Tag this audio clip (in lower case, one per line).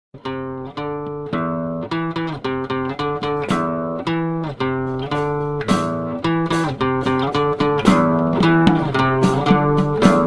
blues
zither